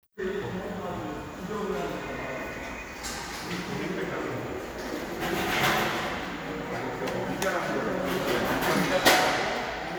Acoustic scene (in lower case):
subway station